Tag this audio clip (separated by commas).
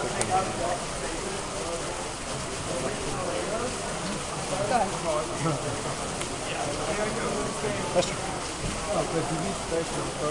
Speech